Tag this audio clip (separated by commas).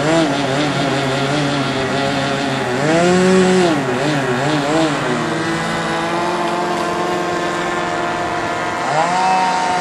Vehicle